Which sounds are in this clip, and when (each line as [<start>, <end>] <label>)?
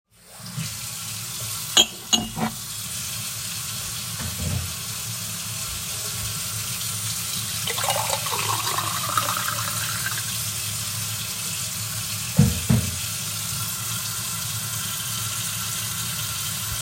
[0.39, 16.81] running water
[1.65, 2.66] cutlery and dishes